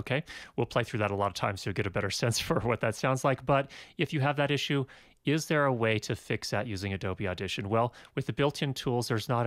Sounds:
Speech

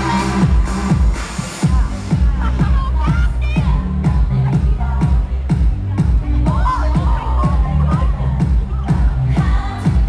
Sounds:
Female singing, Speech, Music

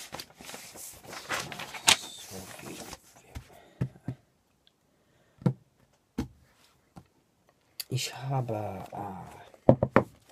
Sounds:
man speaking, Speech

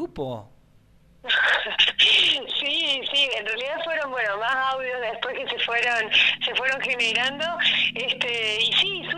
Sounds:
Radio, Speech

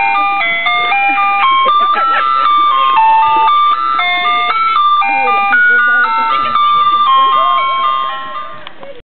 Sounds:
Speech, honking

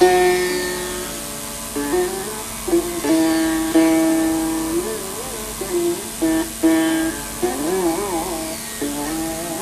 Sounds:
inside a large room or hall, Sitar, Carnatic music, Musical instrument, Music, Classical music, Plucked string instrument

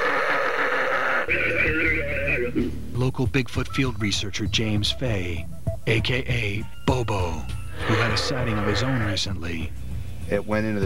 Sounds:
Speech, Music

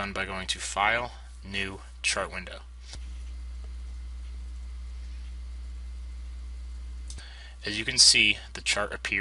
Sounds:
Speech

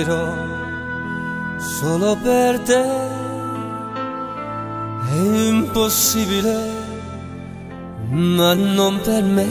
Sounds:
Classical music, Music

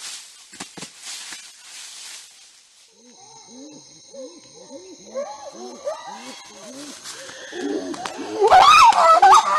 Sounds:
chimpanzee pant-hooting

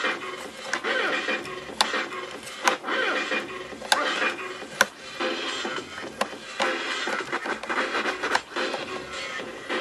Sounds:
Electronic music, Music, Scratching (performance technique)

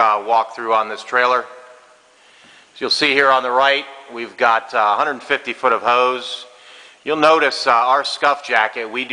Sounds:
Speech

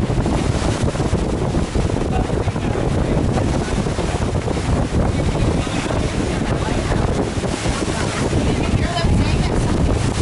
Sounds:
outside, rural or natural, Vehicle, Ship, Boat, Speech

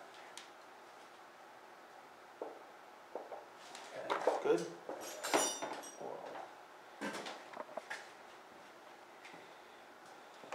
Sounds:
Speech, inside a large room or hall

